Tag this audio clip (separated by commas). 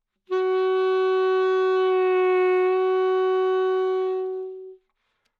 Music, Musical instrument, woodwind instrument